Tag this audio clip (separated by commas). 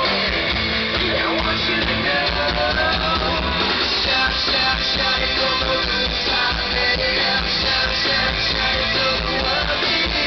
Music